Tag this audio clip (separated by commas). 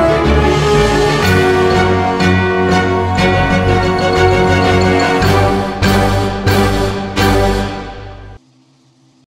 Music